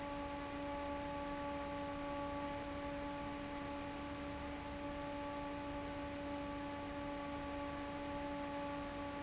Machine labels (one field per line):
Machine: fan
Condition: normal